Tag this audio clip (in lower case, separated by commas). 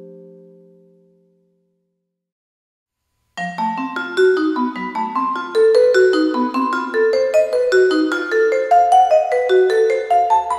playing vibraphone